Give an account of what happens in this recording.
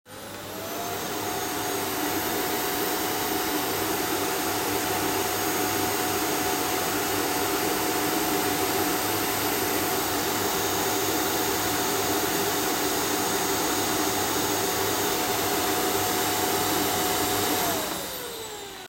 I vaccumed the kitchen in the evening. However, I stopped shortly after I began because I forgout my keys outside.